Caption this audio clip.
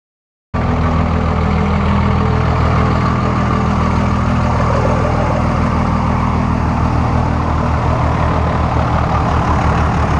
A diesel truck engine idles deeply